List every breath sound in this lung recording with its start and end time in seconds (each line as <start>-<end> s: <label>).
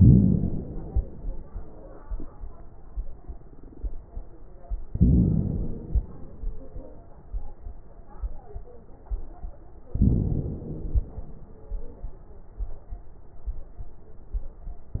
0.00-0.97 s: inhalation
4.90-5.98 s: inhalation
9.98-11.06 s: inhalation